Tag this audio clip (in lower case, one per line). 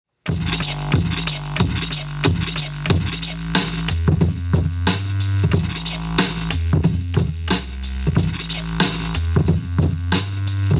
musical instrument
inside a small room
music